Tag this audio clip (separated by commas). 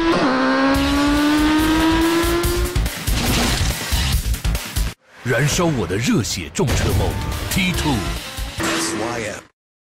Vehicle, Speech, Motorcycle, Music